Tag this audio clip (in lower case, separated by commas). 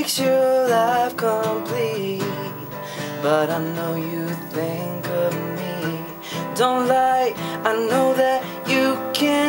radio, music